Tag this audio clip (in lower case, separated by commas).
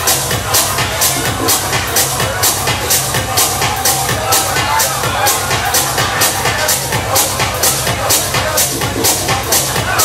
techno, speech, music